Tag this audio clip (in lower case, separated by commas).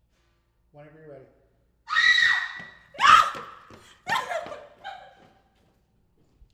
human voice, screaming